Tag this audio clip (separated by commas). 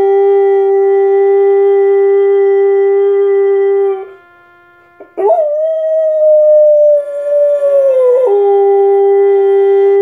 Animal, Yip, pets, Howl, Dog